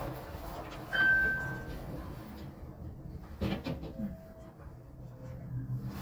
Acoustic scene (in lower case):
elevator